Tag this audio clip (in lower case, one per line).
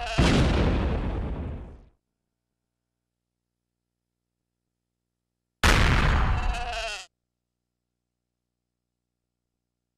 sheep
bleat